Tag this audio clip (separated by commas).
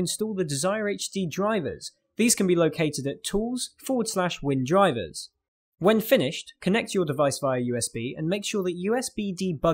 inside a small room, Speech, Narration